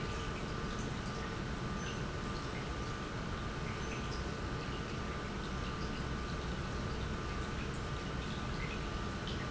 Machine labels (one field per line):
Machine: pump